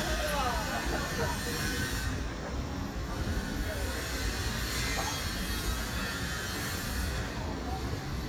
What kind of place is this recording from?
residential area